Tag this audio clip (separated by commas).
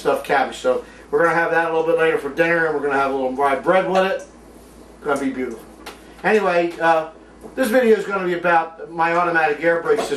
Speech